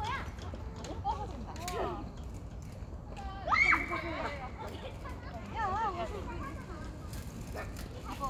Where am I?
in a residential area